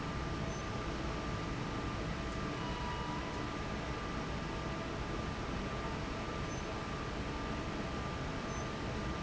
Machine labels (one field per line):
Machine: fan